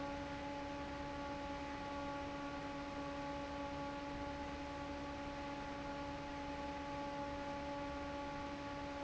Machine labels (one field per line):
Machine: fan